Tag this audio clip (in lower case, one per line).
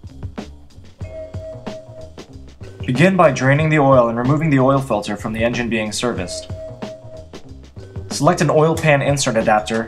music
speech